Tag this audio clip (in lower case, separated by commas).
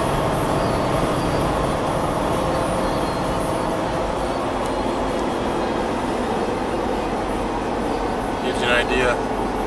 speech, music